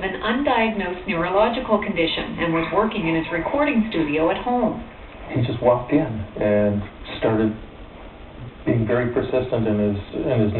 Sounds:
speech
bow-wow

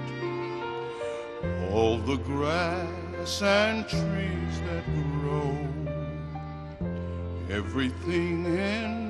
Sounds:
music
christmas music

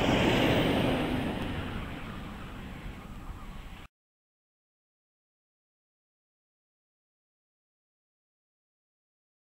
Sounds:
vehicle

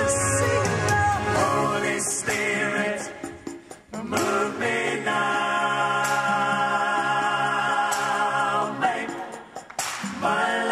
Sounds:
christmas music
singing
music

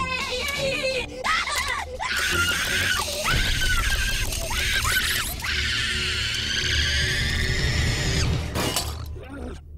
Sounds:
music

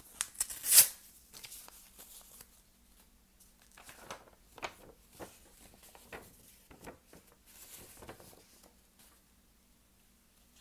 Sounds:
ripping paper

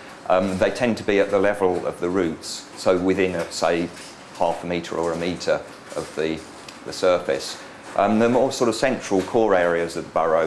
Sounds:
speech

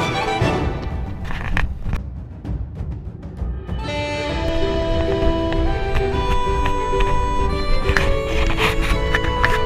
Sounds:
music
outside, rural or natural
run

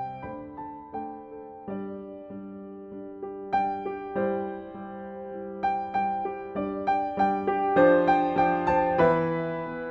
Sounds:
music

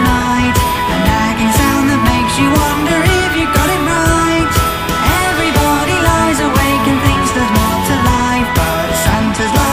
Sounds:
music

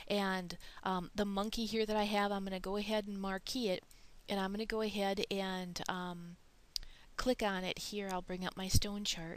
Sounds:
speech

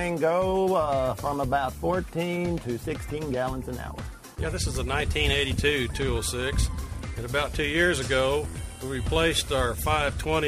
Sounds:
music
speech

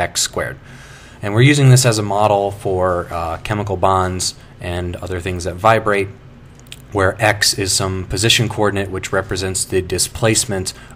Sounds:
speech

